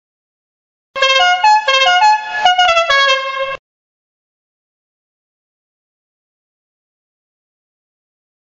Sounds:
car horn, Silence

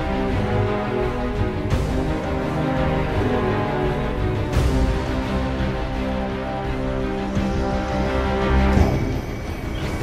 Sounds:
Music

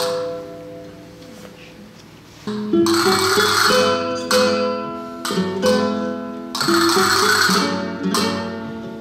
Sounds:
playing castanets

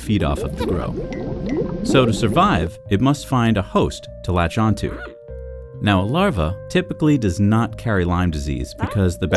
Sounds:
Speech

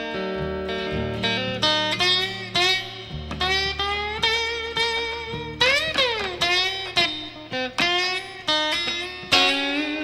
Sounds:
slide guitar, Music

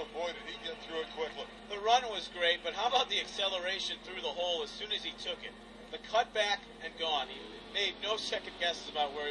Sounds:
Speech

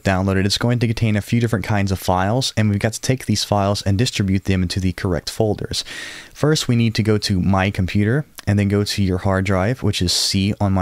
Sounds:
Speech

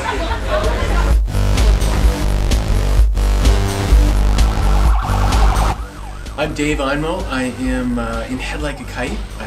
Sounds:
Speech, Music

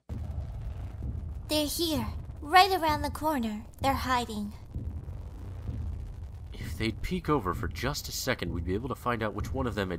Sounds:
Heart sounds, Speech

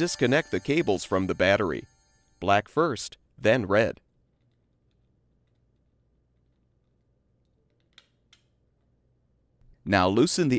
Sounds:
Speech

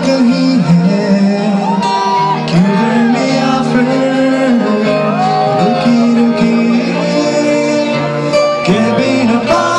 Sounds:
Music, Orchestra, Male singing

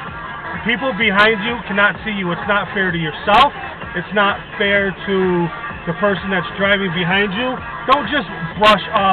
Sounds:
Music, Speech

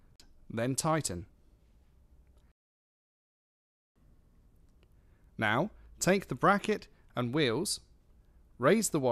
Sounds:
Speech

